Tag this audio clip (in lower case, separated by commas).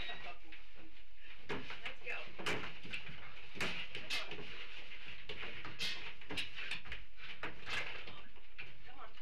speech